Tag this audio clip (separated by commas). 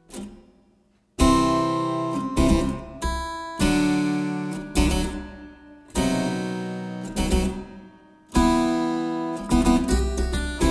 playing harpsichord